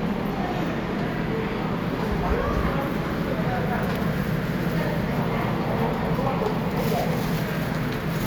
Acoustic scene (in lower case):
subway station